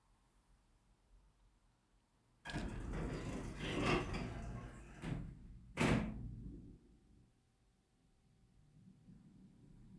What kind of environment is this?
elevator